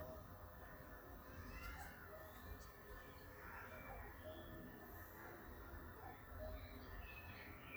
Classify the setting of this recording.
park